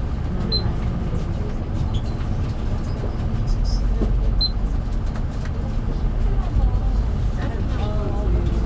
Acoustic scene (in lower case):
bus